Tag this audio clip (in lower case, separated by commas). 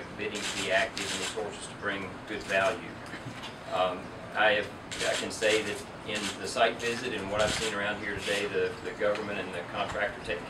speech